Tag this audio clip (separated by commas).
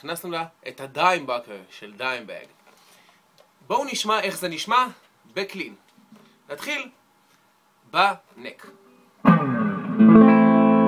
Guitar, Musical instrument, Electric guitar, Speech, Strum, Music, Plucked string instrument